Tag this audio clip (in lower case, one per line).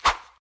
whoosh